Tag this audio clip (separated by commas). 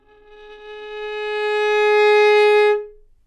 Bowed string instrument, Musical instrument, Music